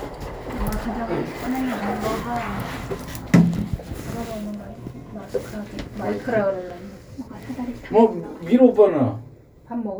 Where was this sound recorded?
in an elevator